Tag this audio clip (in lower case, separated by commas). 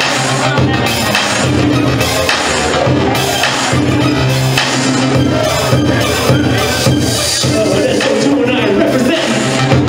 speech, music